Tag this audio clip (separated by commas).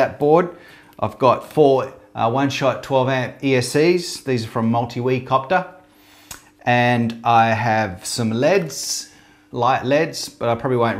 Speech